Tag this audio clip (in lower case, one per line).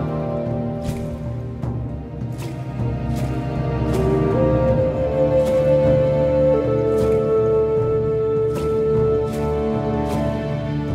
music